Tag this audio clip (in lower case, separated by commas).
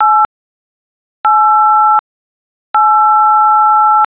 alarm, telephone